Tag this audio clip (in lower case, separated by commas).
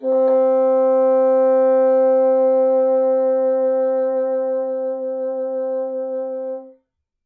musical instrument, music, woodwind instrument